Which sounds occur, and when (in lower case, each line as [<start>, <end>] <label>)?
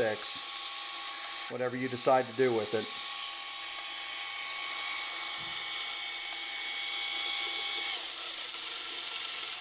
[0.00, 0.36] man speaking
[0.00, 9.60] mechanisms
[0.14, 1.54] gears
[0.82, 1.32] breathing
[1.46, 2.81] man speaking
[2.63, 9.60] gears